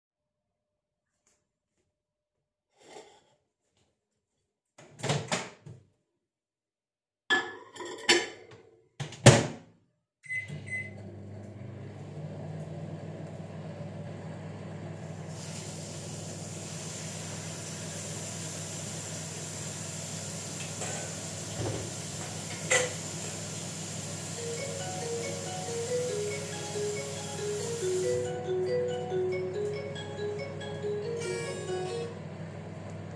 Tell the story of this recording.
I took a plate opened the microwave then put the plate in the microwave, closed the microwave and turned it on, after that I turned the sink on and started washing dishes, then my phone rang.